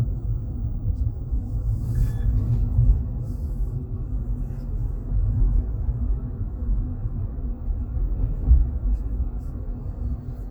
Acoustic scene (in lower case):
car